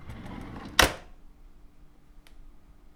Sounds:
Drawer open or close, home sounds

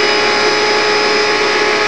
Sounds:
home sounds

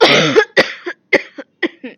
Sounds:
Cough, Respiratory sounds, Human voice

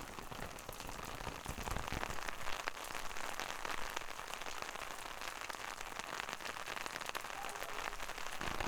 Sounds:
Rain, Water

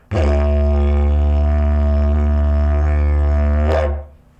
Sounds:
Music, Musical instrument

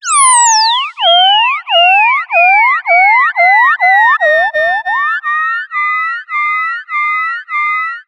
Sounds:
Animal

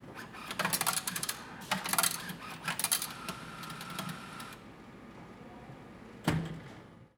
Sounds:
Chatter, Coin (dropping), home sounds, Human group actions

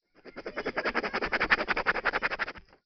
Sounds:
home sounds, Writing

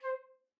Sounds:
Wind instrument, Music, Musical instrument

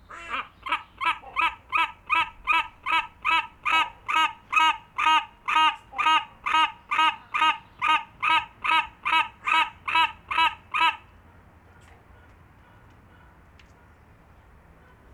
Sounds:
Wild animals, bird call, Bird, Animal

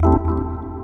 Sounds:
Music, Organ, Musical instrument, Keyboard (musical)

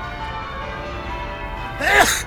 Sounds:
Bell, Sneeze, Church bell, Respiratory sounds

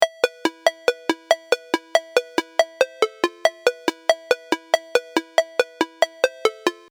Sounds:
Alarm, Ringtone, Telephone

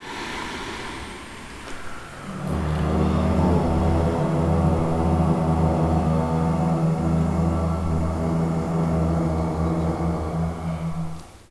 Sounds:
Singing, Human voice

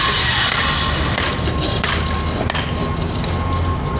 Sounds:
Tools, Sawing

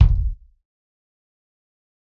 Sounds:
Drum, Musical instrument, Bass drum, Percussion, Music

